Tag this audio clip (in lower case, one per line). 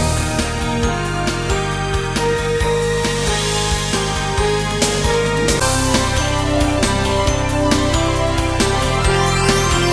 music
rhythm and blues
middle eastern music